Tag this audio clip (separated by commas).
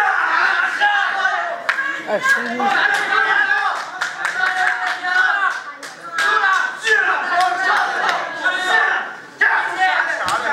inside a large room or hall, Speech